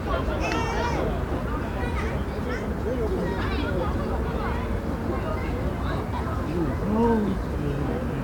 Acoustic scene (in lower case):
residential area